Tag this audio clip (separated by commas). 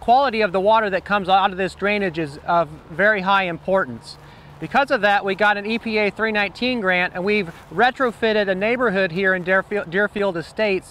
Speech